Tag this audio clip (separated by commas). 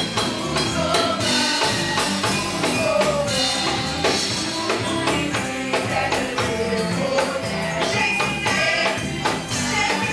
Music